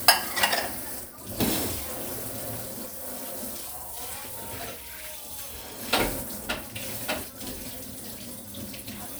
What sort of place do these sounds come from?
kitchen